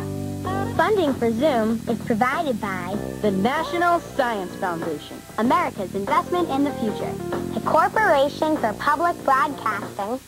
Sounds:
music, speech

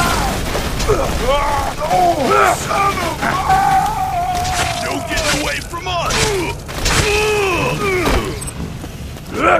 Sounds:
speech, run

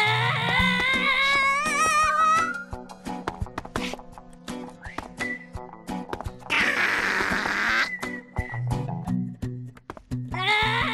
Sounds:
music

